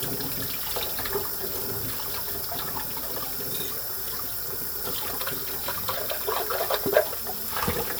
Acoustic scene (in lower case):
kitchen